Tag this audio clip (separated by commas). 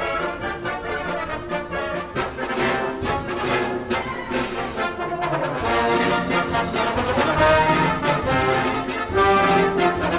Music, Brass instrument